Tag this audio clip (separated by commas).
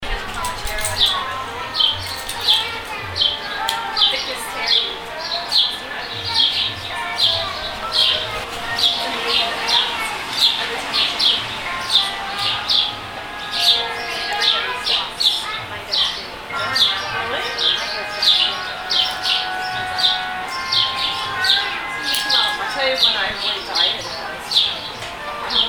Wild animals, Chirp, Animal, Bird, Bird vocalization